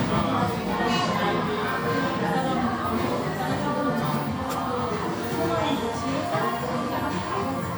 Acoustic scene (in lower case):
crowded indoor space